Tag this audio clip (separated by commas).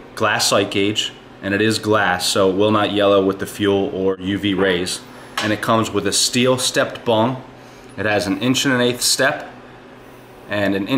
Speech